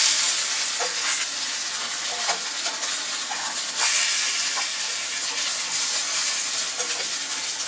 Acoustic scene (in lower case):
kitchen